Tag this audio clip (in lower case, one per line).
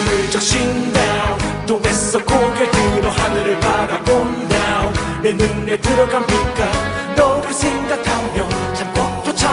singing
reggae